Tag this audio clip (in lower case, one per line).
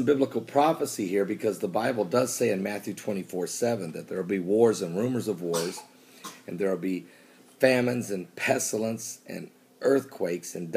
speech